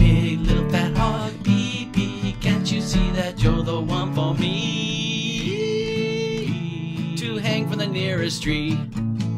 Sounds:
music

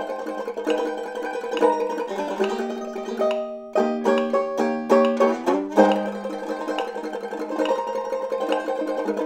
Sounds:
playing banjo

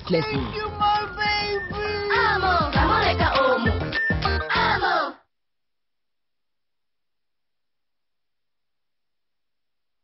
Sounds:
music
speech

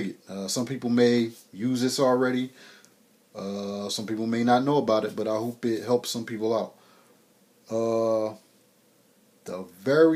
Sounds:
speech

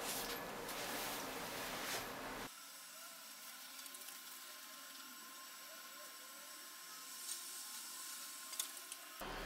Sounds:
speech

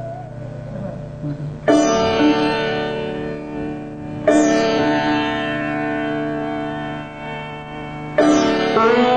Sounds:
music

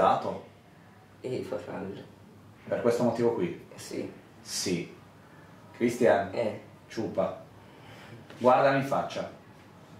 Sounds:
speech

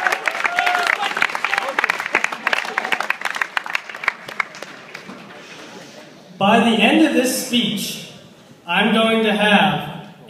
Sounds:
speech
man speaking

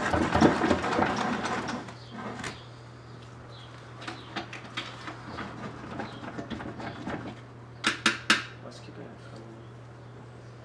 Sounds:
inside a small room

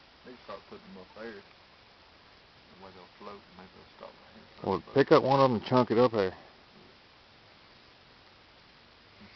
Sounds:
speech

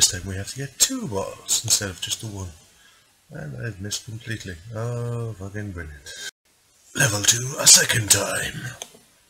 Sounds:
speech

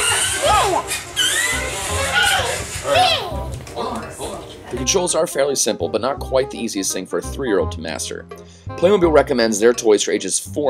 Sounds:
speech
music

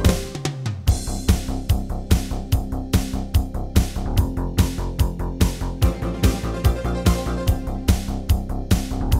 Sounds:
music

